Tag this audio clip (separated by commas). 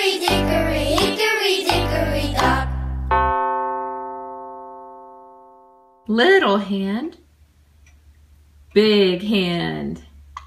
Music, Speech